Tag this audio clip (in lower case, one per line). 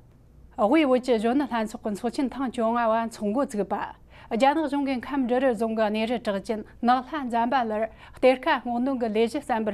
speech